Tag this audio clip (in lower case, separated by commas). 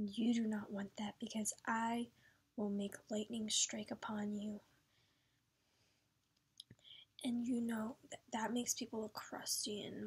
inside a small room, speech